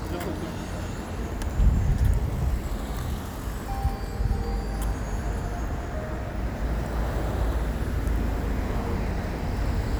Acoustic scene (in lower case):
street